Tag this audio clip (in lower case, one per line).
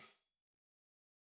musical instrument
tambourine
music
percussion